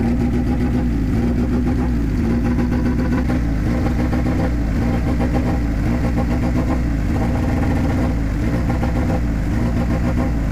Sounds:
Medium engine (mid frequency), revving, Car, Accelerating, Vehicle, Engine

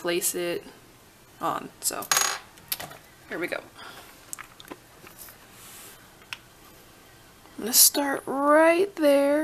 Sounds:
inside a small room, Speech

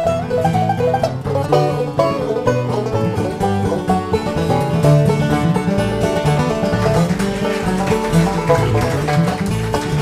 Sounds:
Music

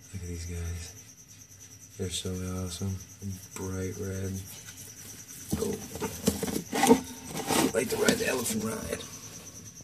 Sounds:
Animal

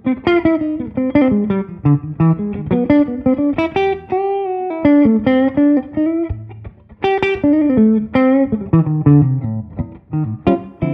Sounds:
Music

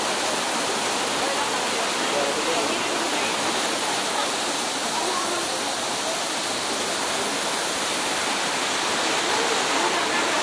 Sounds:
waterfall burbling

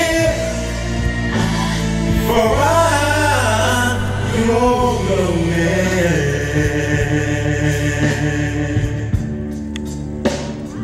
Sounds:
Music, Singing

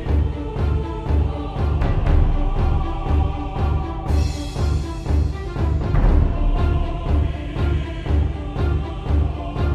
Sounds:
Music, Soundtrack music

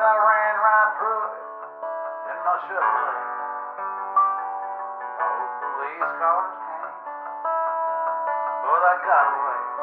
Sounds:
Music, Sad music

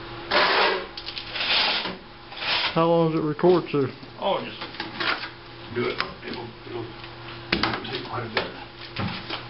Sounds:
Speech

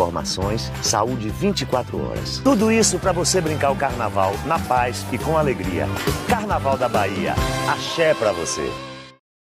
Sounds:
Speech, Music, Rhythm and blues

